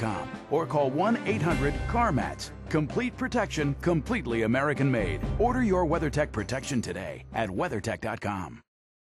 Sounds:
Speech, Music

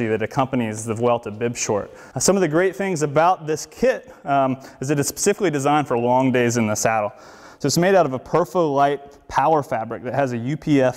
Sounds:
Speech

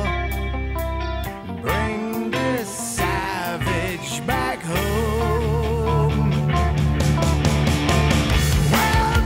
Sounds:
Music, Rock music

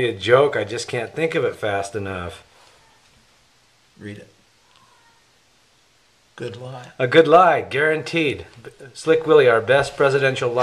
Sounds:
Speech

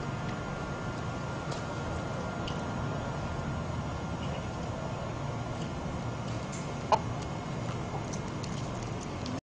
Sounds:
Fowl, chicken clucking, Cluck, rooster

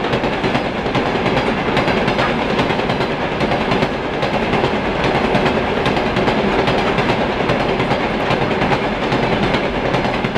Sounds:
train whistling

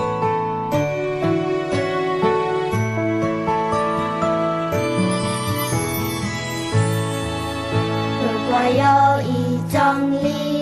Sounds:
Music, Theme music

